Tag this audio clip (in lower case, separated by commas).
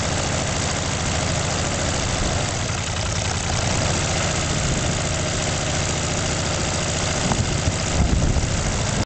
idling, vehicle